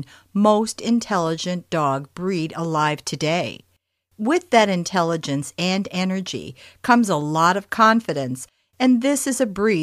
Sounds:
speech

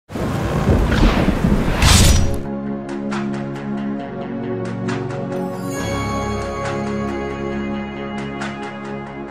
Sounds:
music

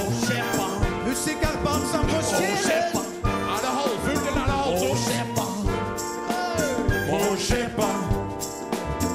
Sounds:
music

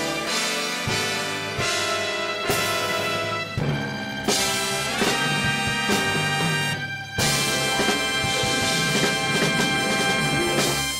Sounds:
music

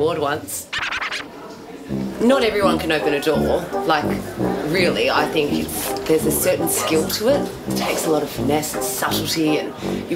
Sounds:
door
speech
music

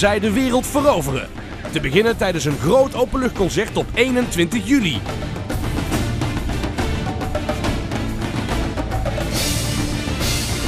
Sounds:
music
percussion
speech

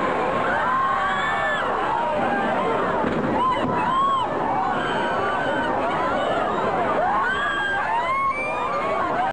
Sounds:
burst
explosion

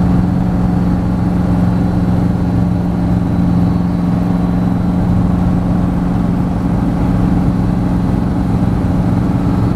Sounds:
aircraft
vehicle

